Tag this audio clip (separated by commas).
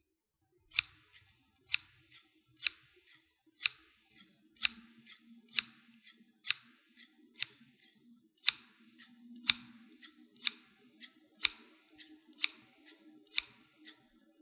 Scissors, Domestic sounds